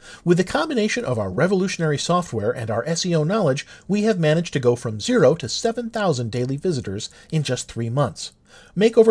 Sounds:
speech

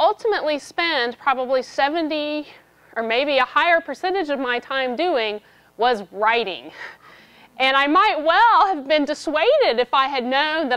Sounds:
speech

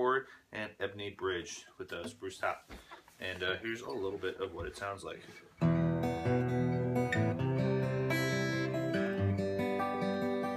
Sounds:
guitar, musical instrument, strum, plucked string instrument, music, acoustic guitar

